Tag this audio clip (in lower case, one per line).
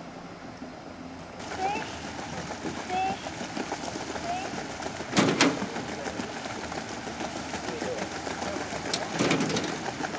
motorboat
vehicle
speech
water vehicle